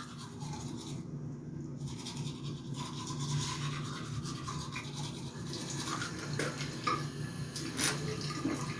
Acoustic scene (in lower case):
restroom